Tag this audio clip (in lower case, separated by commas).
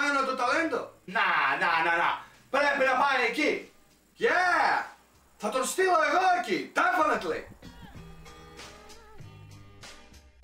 speech, music